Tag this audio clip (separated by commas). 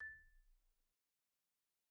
Music, Percussion, Marimba, Mallet percussion, Musical instrument